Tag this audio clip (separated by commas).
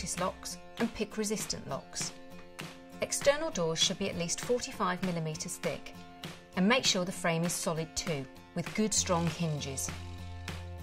Speech, Music